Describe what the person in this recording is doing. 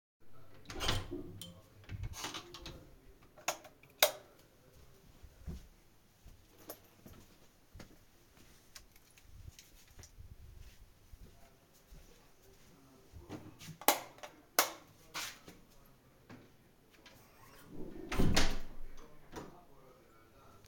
I opened the door to the storage room and turned the light on. Then I grabbed myself a water bottle and switched the lights off again and closed the door behind me.